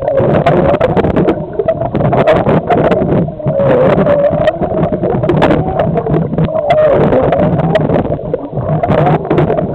Rustling and gurgling underwater